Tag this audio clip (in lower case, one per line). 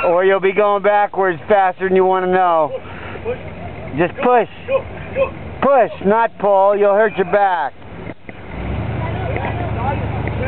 vehicle
speech